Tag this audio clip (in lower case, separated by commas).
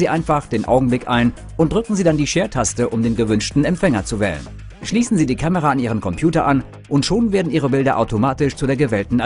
speech, music